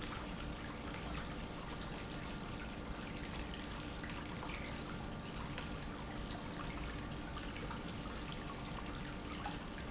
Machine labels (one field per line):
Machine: pump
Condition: normal